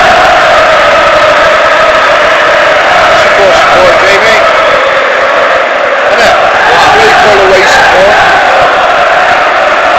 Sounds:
speech

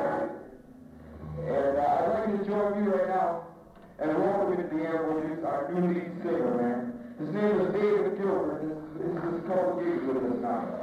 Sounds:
speech

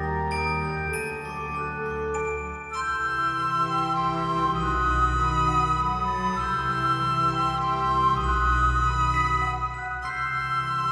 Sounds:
glockenspiel

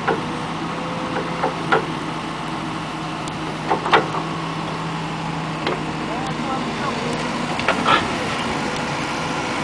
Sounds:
speech

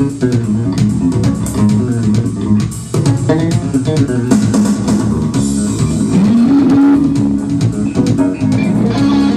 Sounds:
music
plucked string instrument
musical instrument
electronic organ
guitar

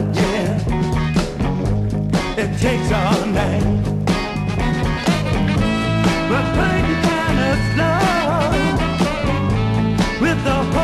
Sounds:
music

